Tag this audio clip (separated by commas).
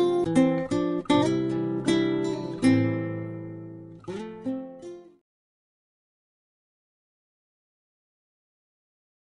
Music